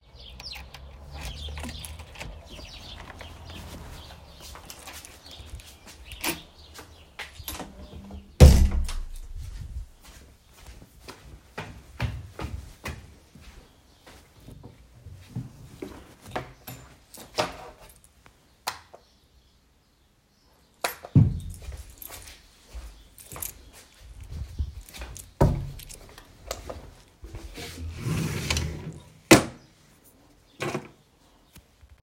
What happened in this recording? I opened the door with the key and closed, went upstairs and turned the light on. Then I opened the drawer put my key inside and closed.